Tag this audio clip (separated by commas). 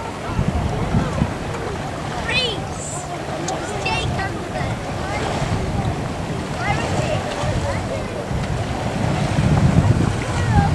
Speech, outside, rural or natural, Vehicle